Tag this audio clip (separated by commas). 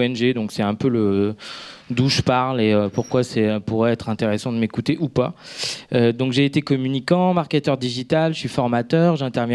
Speech